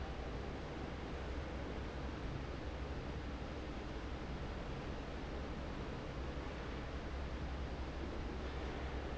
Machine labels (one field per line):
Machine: fan